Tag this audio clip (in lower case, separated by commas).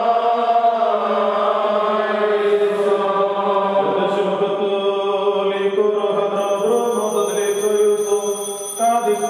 chant